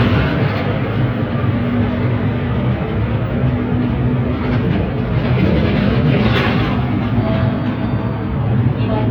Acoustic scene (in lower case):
bus